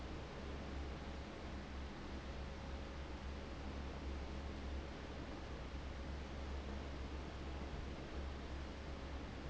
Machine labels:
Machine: fan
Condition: abnormal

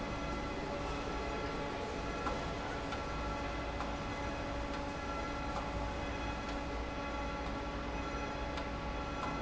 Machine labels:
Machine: fan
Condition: normal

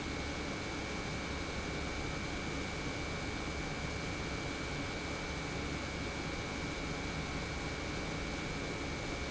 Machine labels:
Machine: pump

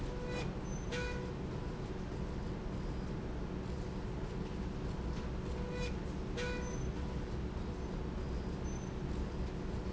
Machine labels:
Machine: slide rail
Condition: normal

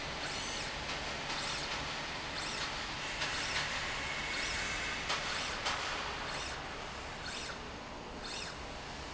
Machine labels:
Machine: slide rail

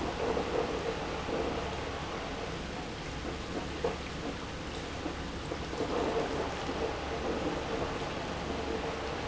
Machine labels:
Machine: pump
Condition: abnormal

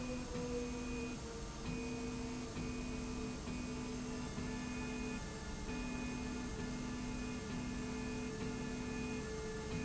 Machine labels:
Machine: slide rail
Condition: normal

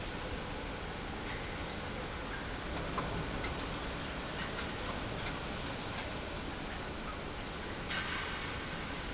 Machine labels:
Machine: pump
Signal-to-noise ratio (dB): -6 dB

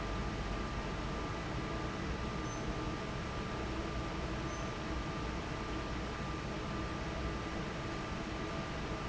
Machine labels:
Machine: fan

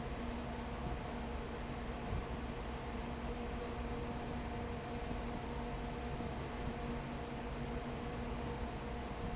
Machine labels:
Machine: fan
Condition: abnormal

